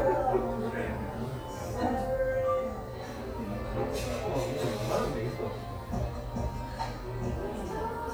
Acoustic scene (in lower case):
cafe